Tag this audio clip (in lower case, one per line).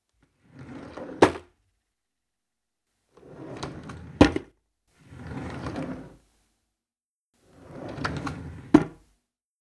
drawer open or close
wood
home sounds